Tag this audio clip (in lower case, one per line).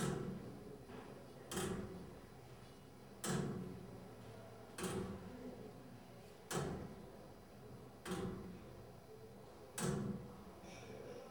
mechanisms
clock